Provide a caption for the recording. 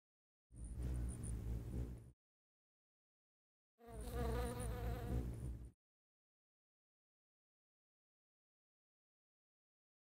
A humming bird